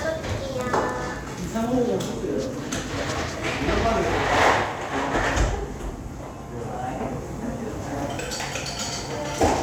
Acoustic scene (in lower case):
cafe